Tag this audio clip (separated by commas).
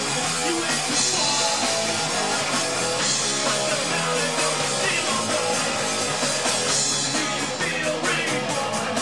Drum kit, Guitar, Drum, Musical instrument, Punk rock, Music